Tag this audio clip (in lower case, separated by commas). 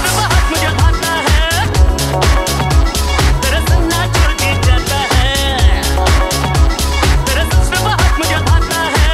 music